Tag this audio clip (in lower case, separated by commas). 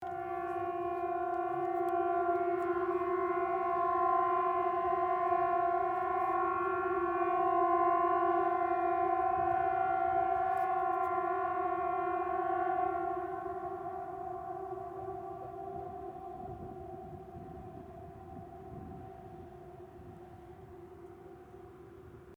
alarm, siren